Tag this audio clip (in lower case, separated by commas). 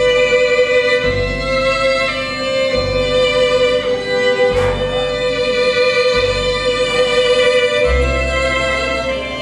bluegrass, music